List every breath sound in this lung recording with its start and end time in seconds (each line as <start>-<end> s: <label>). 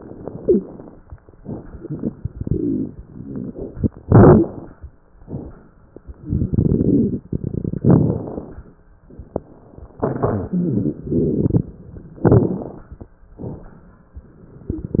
0.28-0.69 s: wheeze
4.02-4.75 s: inhalation
4.02-4.75 s: crackles
6.28-7.78 s: crackles
7.84-8.73 s: inhalation
7.84-8.73 s: crackles
10.51-11.65 s: crackles
12.24-12.96 s: inhalation
12.24-12.96 s: crackles